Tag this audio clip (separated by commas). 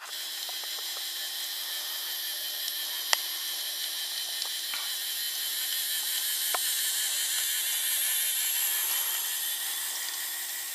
Train